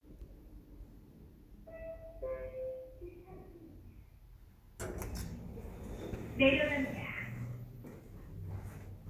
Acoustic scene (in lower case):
elevator